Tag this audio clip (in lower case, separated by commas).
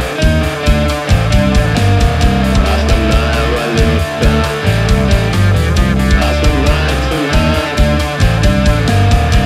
music